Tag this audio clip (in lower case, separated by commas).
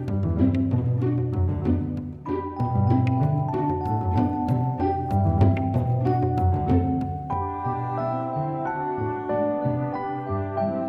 music